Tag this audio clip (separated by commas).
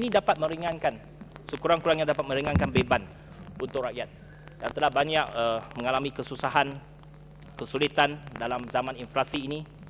Narration, man speaking, Speech